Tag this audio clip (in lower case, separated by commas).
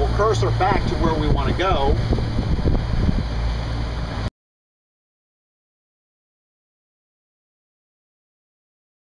speech